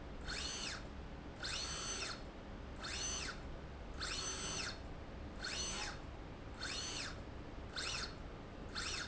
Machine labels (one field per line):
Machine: slide rail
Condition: normal